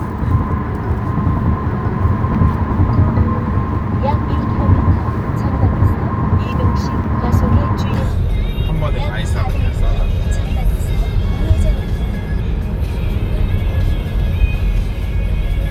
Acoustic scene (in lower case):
car